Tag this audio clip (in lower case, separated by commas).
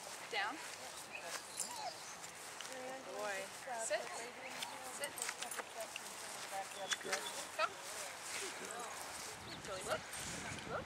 speech